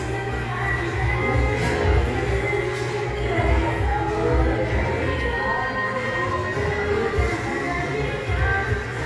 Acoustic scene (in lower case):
crowded indoor space